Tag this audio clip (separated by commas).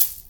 Rattle (instrument), Percussion, Music, Musical instrument